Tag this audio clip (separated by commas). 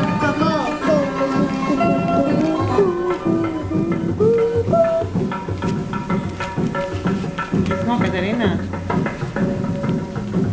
Speech, Music